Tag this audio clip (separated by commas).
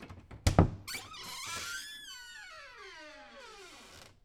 Squeak, Domestic sounds, Door